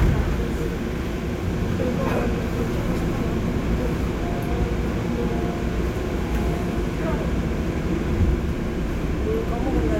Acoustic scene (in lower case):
subway train